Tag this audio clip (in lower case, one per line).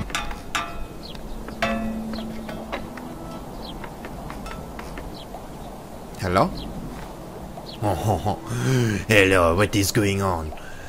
speech